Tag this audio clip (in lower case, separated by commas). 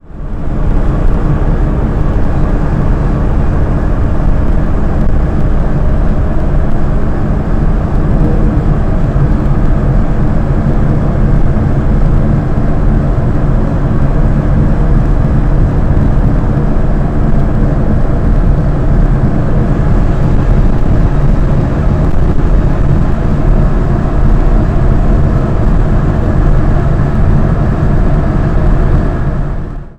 vehicle, water vehicle